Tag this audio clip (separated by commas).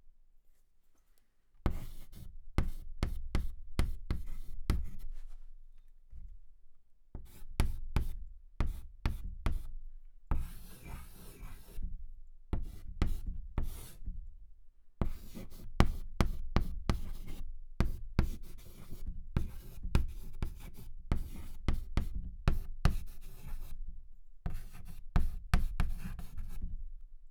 home sounds, Writing